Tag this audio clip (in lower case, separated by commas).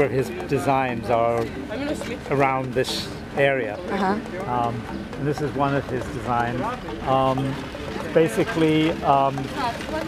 speech, music